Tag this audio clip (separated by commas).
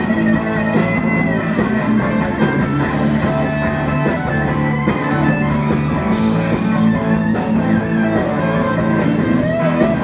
Music, Roll, Rock and roll